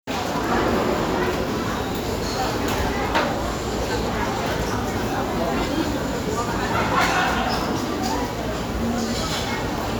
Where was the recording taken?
in a restaurant